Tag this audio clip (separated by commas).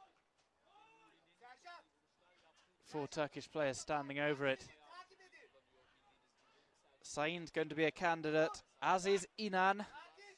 Speech